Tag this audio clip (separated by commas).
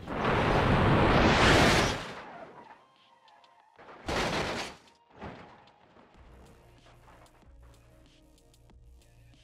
sliding door